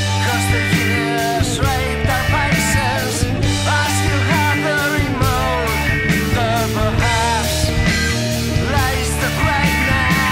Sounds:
Grunge, Music

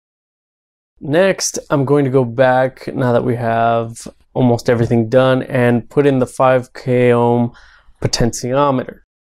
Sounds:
Speech

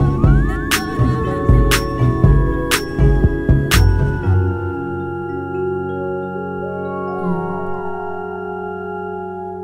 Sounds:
Music

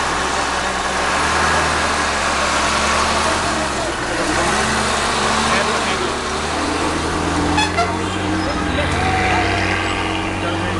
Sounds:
Vehicle, Speech, Truck

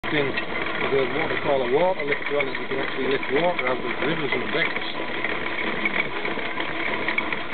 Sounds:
Vehicle, Speech

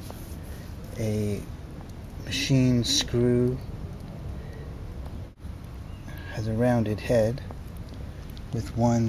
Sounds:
Speech

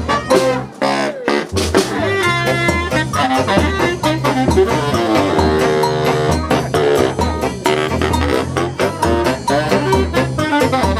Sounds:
Saxophone, Music, Brass instrument, Musical instrument

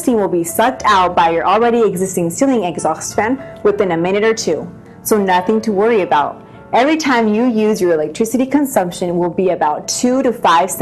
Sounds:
Speech, inside a small room, Music

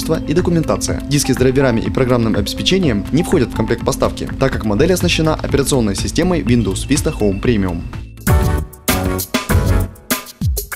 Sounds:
Speech, Music

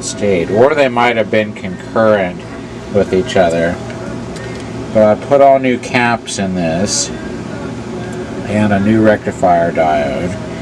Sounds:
Speech, Music

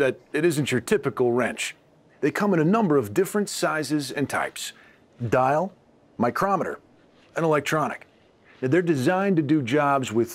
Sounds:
Speech

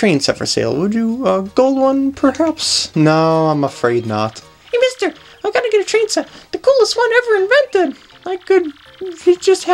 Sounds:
Music, Speech

